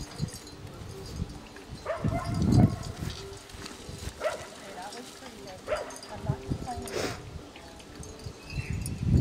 Wind is blowing while people talk then a bark from a dog